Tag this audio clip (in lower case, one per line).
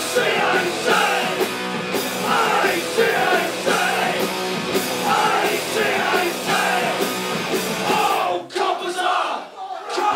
inside a large room or hall
singing
music